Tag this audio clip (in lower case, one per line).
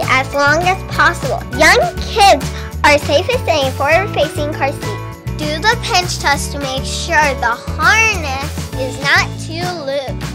speech
music